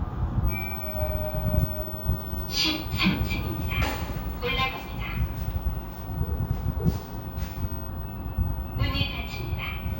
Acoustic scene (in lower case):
elevator